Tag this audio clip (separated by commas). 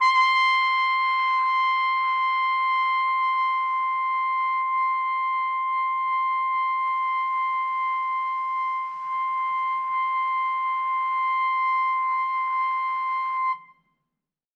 Musical instrument, Brass instrument, Music